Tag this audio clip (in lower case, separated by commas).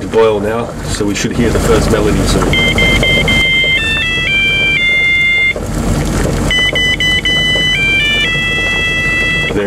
speech